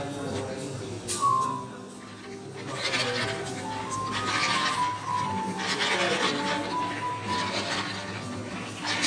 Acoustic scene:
cafe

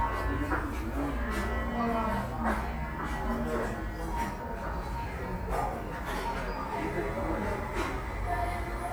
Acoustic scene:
cafe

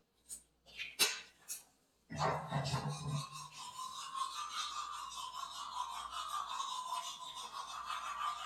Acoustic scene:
restroom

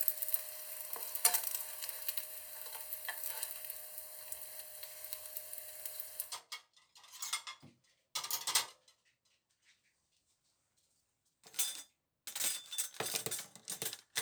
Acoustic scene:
kitchen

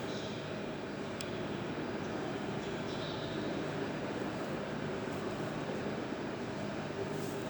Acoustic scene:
subway station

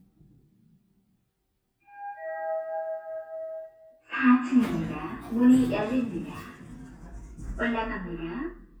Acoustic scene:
elevator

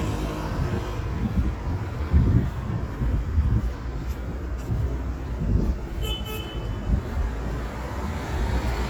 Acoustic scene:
street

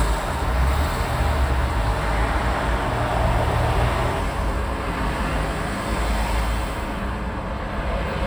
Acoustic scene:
street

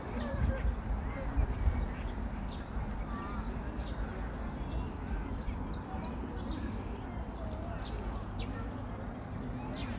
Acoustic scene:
park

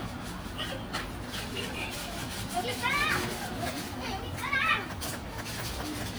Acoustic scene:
park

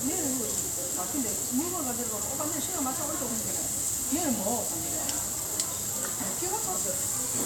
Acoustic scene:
restaurant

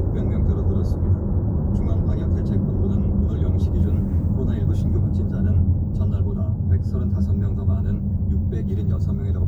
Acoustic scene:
car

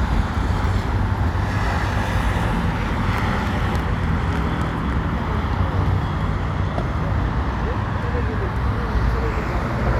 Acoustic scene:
street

